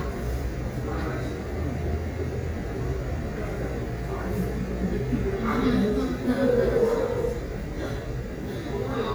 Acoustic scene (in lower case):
crowded indoor space